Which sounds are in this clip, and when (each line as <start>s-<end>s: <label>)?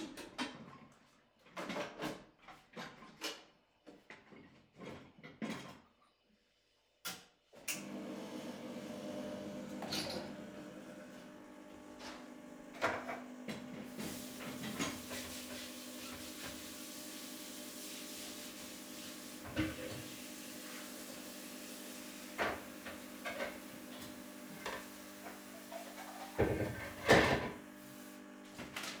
1.3s-6.4s: cutlery and dishes
7.0s-29.0s: coffee machine
9.8s-10.4s: cutlery and dishes
12.5s-16.6s: cutlery and dishes
13.7s-29.0s: running water
19.5s-19.8s: cutlery and dishes
22.3s-22.7s: cutlery and dishes
24.4s-24.8s: cutlery and dishes
26.0s-27.8s: cutlery and dishes